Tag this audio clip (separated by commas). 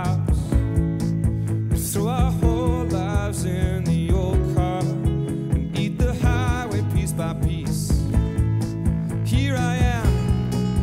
Music